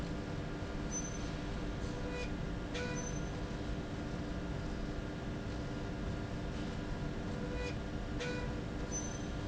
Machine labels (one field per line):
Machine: slide rail